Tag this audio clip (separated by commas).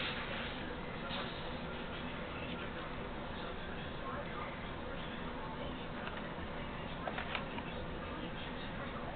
Speech